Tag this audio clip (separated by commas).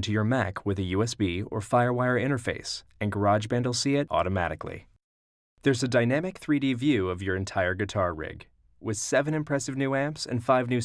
Speech